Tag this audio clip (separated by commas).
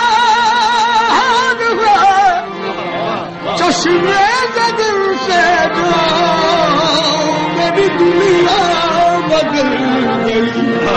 Music